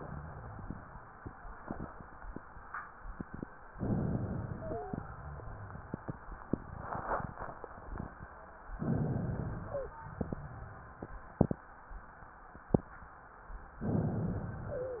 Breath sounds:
3.79-5.04 s: inhalation
4.52-4.98 s: wheeze
8.73-9.98 s: inhalation
9.66-9.98 s: wheeze
13.82-15.00 s: inhalation
14.66-15.00 s: wheeze

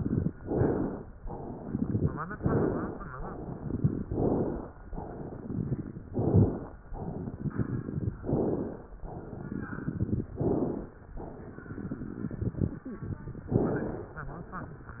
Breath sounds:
0.00-0.32 s: exhalation
0.00-0.32 s: crackles
0.38-1.03 s: inhalation
1.25-2.18 s: exhalation
1.25-2.18 s: crackles
2.37-3.02 s: inhalation
3.17-4.00 s: exhalation
3.17-4.00 s: crackles
4.10-4.75 s: inhalation
4.91-6.01 s: exhalation
4.91-6.01 s: crackles
6.09-6.74 s: inhalation
6.98-8.14 s: exhalation
6.98-8.14 s: crackles
8.23-8.88 s: inhalation
9.05-10.28 s: exhalation
9.05-10.28 s: crackles
10.40-11.04 s: inhalation
11.19-13.51 s: exhalation
11.19-13.51 s: crackles
13.51-14.16 s: inhalation

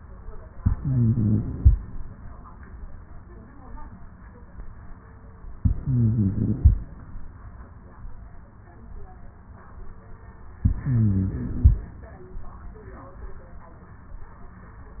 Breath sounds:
0.61-1.75 s: inhalation
0.61-1.75 s: stridor
5.58-6.72 s: inhalation
5.58-6.72 s: stridor
10.64-11.78 s: inhalation
10.64-11.78 s: stridor

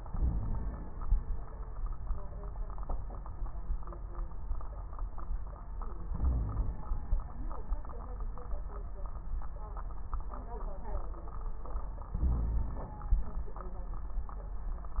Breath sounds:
0.00-0.87 s: inhalation
0.06-0.80 s: wheeze
6.09-6.88 s: inhalation
6.16-6.75 s: wheeze
12.13-12.97 s: inhalation
12.22-12.97 s: wheeze

